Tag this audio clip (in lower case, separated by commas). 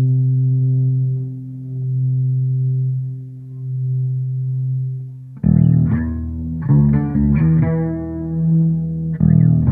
plucked string instrument, music, bass guitar, effects unit, guitar, musical instrument